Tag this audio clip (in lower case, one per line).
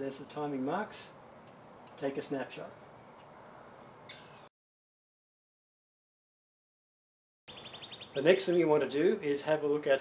speech